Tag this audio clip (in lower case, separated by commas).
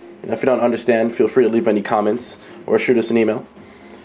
speech